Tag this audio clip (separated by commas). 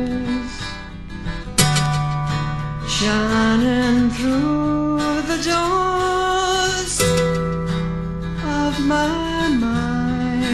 Music